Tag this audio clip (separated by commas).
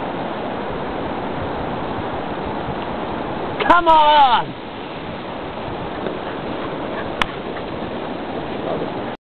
Speech